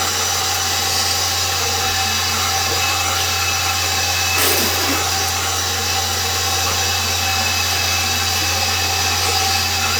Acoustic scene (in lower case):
restroom